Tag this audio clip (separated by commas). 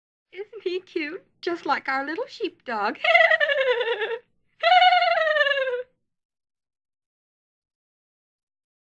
Speech